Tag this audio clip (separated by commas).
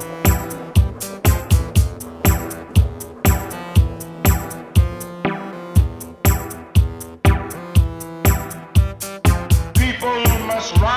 Music, Sound effect